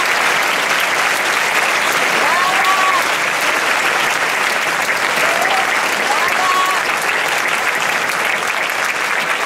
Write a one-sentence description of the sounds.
Applause with yelling